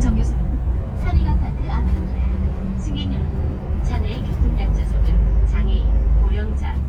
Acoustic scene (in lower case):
bus